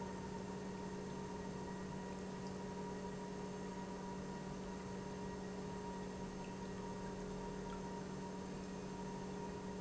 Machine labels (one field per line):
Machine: pump